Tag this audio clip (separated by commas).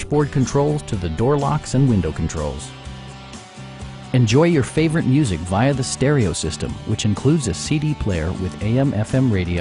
Music, Speech